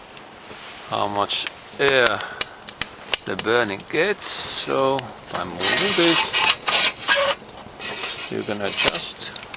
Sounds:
fire
speech

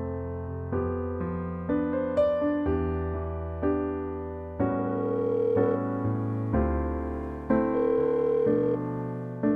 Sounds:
music

